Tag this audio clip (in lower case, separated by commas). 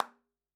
clapping, hands